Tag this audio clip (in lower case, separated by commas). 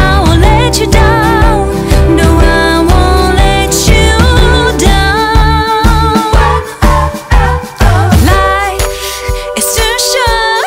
happy music, music